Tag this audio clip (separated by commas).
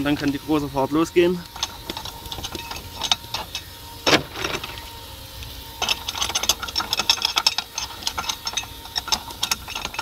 Speech